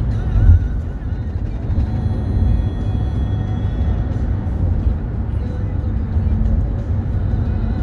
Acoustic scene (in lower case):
car